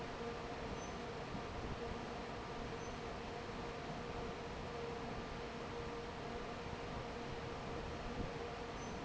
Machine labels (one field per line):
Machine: fan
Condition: normal